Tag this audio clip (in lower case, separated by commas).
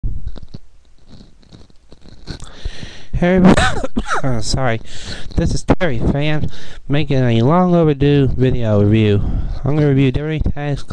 speech